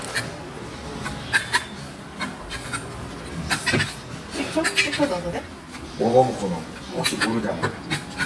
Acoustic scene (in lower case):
restaurant